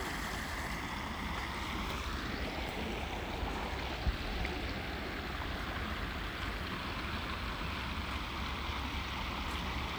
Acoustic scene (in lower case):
park